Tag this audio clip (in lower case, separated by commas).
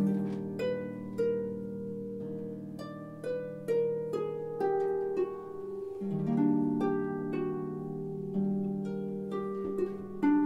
harp, music